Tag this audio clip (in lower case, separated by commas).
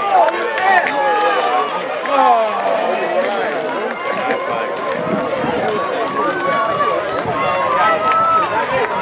outside, urban or man-made, speech